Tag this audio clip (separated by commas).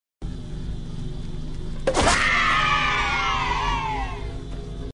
Sound effect